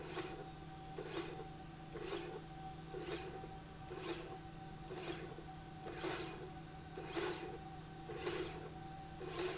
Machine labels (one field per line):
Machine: slide rail